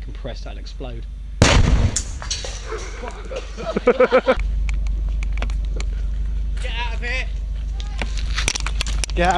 A person speaks then something explodes and people laugh